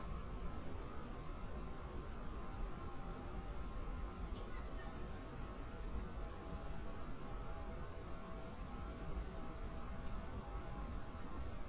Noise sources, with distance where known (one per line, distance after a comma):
background noise